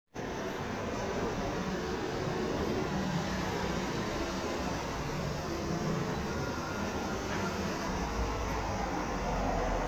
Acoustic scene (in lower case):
street